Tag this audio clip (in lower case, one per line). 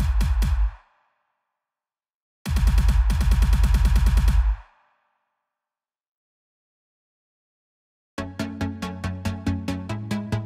electronic music
music
dubstep